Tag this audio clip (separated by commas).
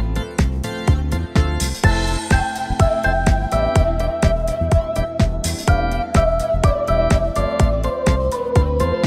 Music